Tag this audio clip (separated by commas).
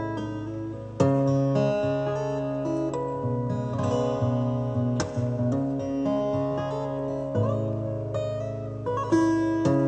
Plucked string instrument, Acoustic guitar, Music, Guitar, Musical instrument, Strum, playing acoustic guitar